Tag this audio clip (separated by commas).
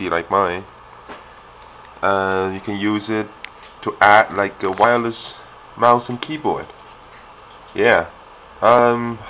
Speech